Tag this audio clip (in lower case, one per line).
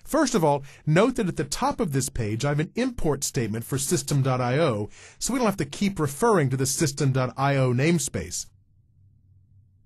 speech